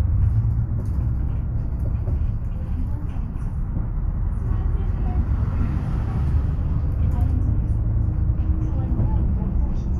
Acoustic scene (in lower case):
bus